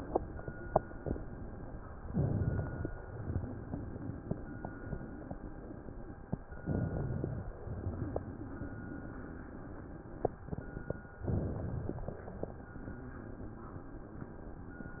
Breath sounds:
2.06-2.90 s: inhalation
3.18-6.34 s: exhalation
6.60-7.44 s: inhalation
7.68-10.96 s: exhalation
11.28-12.12 s: inhalation
12.40-15.00 s: exhalation

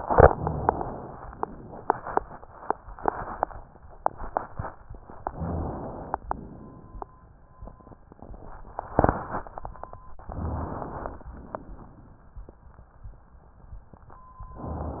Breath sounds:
5.24-6.15 s: inhalation
6.30-7.21 s: exhalation
10.27-11.27 s: inhalation
11.35-12.35 s: exhalation

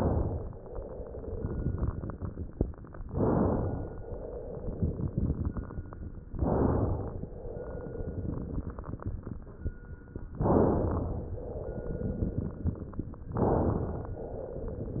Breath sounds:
0.00-0.53 s: inhalation
0.59-2.87 s: exhalation
0.59-2.87 s: crackles
3.05-4.02 s: inhalation
4.00-6.05 s: exhalation
4.00-6.05 s: crackles
6.28-7.25 s: inhalation
7.30-9.72 s: exhalation
7.30-9.72 s: crackles
10.40-11.37 s: inhalation
11.35-13.21 s: exhalation
11.35-13.21 s: crackles
13.39-14.21 s: inhalation
14.25-15.00 s: exhalation
14.25-15.00 s: crackles

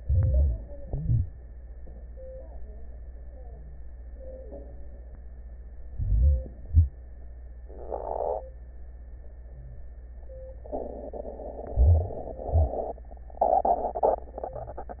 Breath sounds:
0.00-0.79 s: inhalation
0.84-1.45 s: exhalation
5.89-6.66 s: inhalation
6.67-7.04 s: exhalation
11.68-12.51 s: inhalation
12.54-13.08 s: exhalation

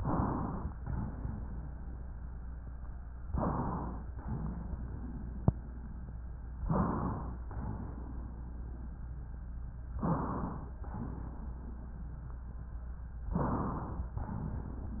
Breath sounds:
0.00-0.69 s: inhalation
0.69-2.05 s: exhalation
0.69-2.05 s: wheeze
3.25-3.69 s: wheeze
3.27-4.04 s: inhalation
4.18-5.48 s: exhalation
4.22-4.78 s: wheeze
6.67-7.23 s: wheeze
6.67-7.45 s: inhalation
7.49-8.33 s: exhalation
7.49-8.33 s: wheeze
9.98-10.68 s: inhalation
9.98-10.68 s: wheeze
10.82-11.66 s: exhalation
10.82-11.80 s: wheeze
13.33-14.15 s: inhalation
13.33-14.15 s: wheeze
14.15-14.90 s: exhalation

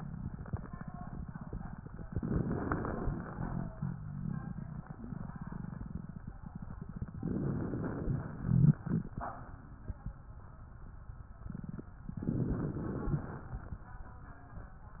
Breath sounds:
2.05-3.15 s: inhalation
2.05-3.15 s: crackles
3.15-3.76 s: exhalation
3.15-3.76 s: rhonchi
7.19-8.18 s: inhalation
7.19-8.18 s: crackles
8.18-8.80 s: exhalation
8.39-8.80 s: rhonchi
12.18-13.13 s: crackles
12.22-13.17 s: inhalation
13.17-13.93 s: exhalation
13.17-13.93 s: crackles

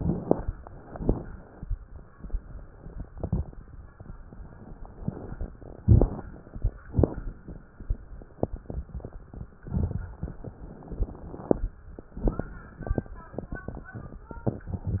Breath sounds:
0.00-0.81 s: inhalation
0.00-0.81 s: crackles
0.82-1.66 s: exhalation
0.82-1.66 s: crackles
3.10-3.61 s: inhalation
3.10-3.61 s: crackles
4.98-5.54 s: inhalation
4.98-5.54 s: crackles
5.56-6.77 s: exhalation
5.56-6.77 s: crackles
6.81-7.69 s: inhalation
6.81-7.69 s: crackles
9.56-10.43 s: inhalation
9.56-10.43 s: crackles
12.10-12.76 s: inhalation
12.10-12.76 s: crackles
13.74-14.24 s: inhalation
13.74-14.24 s: crackles

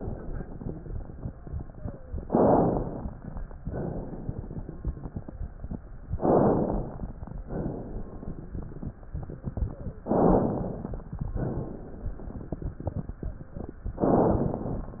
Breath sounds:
1.71-2.20 s: wheeze
2.24-3.13 s: inhalation
3.64-5.28 s: exhalation
6.17-7.14 s: inhalation
7.48-8.58 s: exhalation
9.62-10.03 s: wheeze
10.07-11.04 s: inhalation
11.38-12.49 s: exhalation
13.36-13.77 s: wheeze
14.06-15.00 s: inhalation

